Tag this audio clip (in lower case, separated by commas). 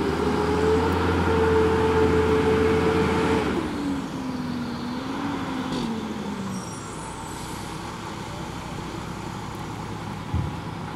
truck, vehicle